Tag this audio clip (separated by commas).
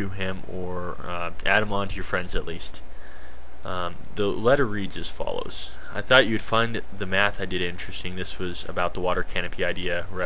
Speech